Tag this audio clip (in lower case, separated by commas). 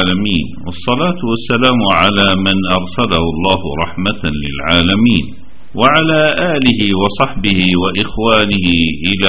speech